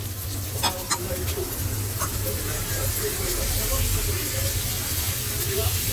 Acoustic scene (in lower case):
restaurant